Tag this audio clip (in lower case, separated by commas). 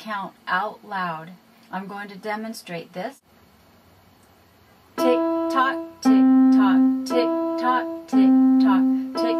speech, piano, music